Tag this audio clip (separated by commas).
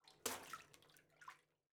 Liquid, splatter, Bathtub (filling or washing), Water, home sounds